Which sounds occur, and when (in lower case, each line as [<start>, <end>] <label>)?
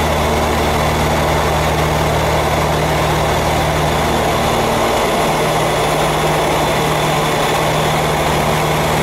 [0.00, 9.02] airplane
[0.00, 9.02] airscrew